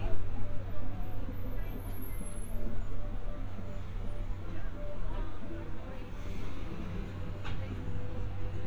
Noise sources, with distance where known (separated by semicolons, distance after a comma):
engine of unclear size, far; music from a fixed source; person or small group talking